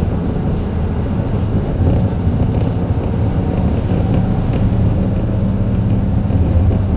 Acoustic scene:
bus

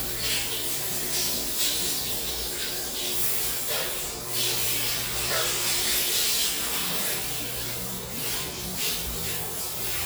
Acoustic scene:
restroom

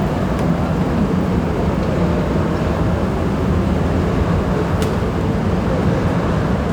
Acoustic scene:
subway station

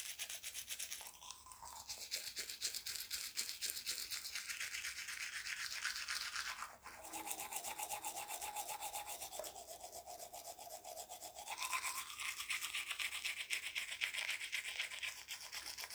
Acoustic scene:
restroom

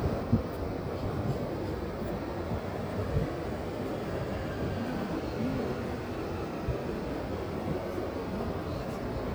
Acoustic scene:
park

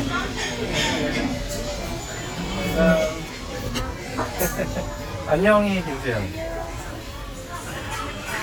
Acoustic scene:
restaurant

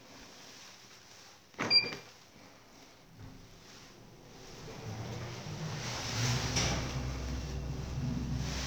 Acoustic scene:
elevator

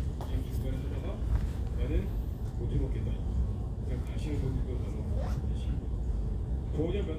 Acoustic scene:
crowded indoor space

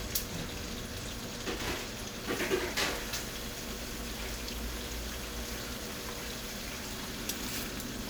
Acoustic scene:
kitchen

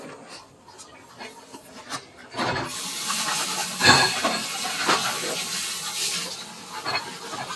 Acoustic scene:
kitchen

